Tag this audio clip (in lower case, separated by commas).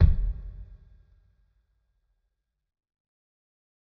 bass drum, music, percussion, drum, musical instrument